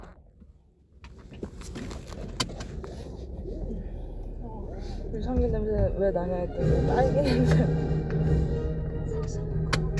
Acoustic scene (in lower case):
car